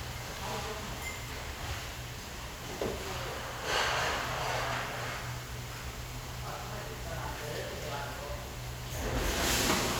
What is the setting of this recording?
restaurant